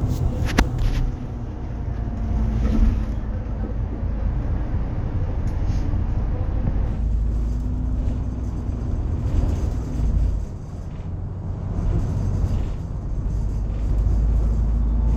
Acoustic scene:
bus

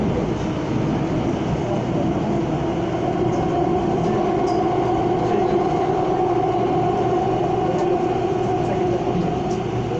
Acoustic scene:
subway train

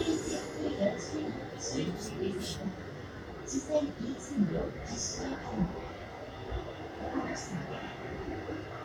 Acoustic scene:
subway train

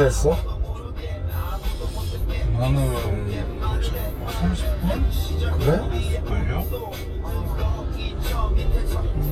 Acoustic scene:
car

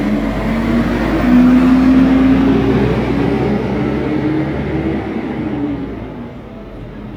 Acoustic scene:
street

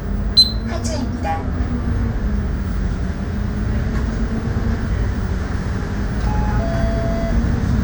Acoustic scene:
bus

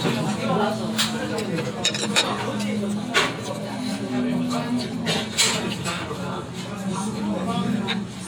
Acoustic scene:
restaurant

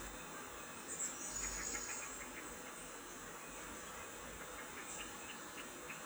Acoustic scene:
park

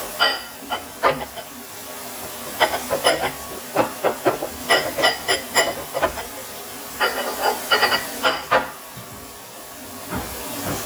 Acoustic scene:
kitchen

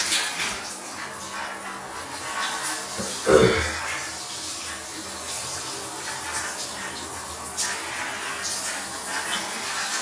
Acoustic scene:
restroom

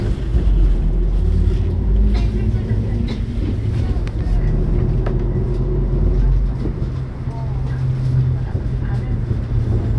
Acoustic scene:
bus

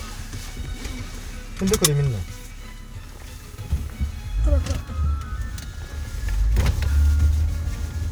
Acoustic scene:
car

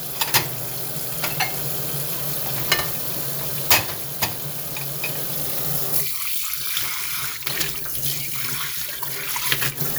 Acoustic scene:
kitchen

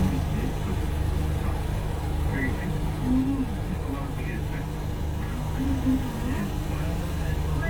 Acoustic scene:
bus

